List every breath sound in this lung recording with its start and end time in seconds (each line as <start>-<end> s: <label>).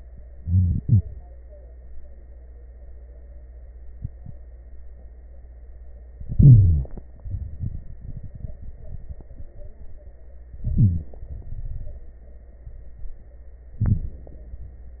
0.32-1.05 s: inhalation
0.32-1.05 s: crackles
6.29-7.03 s: inhalation
6.29-7.03 s: crackles
7.18-10.12 s: exhalation
7.18-10.12 s: crackles
10.56-11.33 s: inhalation
10.56-11.33 s: crackles
11.34-12.24 s: exhalation
11.34-12.24 s: crackles
13.82-14.50 s: inhalation
13.82-14.50 s: crackles